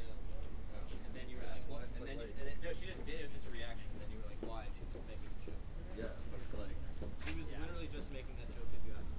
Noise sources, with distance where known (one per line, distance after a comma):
person or small group talking, near